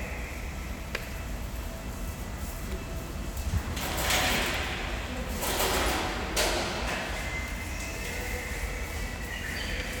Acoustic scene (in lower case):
subway station